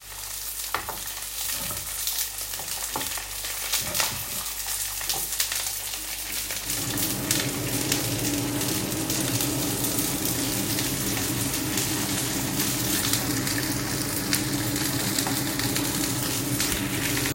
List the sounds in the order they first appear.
cutlery and dishes